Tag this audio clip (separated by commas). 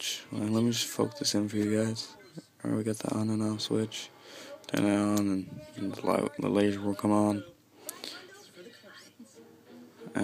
Speech